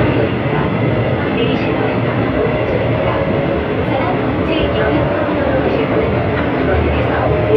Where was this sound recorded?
on a subway train